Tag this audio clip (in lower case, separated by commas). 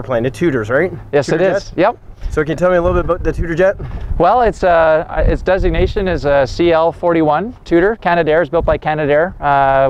speech